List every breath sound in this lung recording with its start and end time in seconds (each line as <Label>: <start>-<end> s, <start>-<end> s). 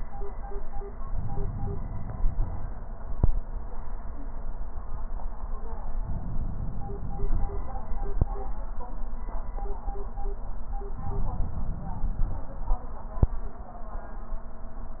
Inhalation: 1.16-2.66 s, 6.02-7.82 s, 10.95-12.45 s